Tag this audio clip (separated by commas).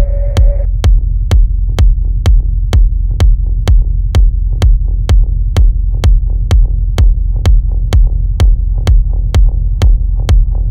Music